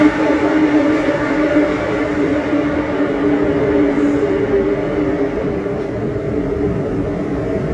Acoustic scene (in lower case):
subway train